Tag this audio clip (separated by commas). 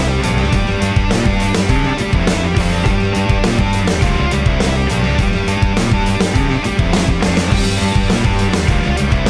Music